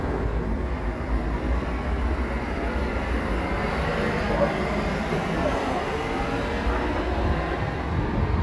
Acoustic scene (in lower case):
street